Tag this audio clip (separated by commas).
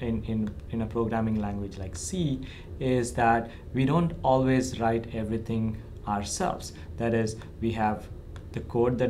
Speech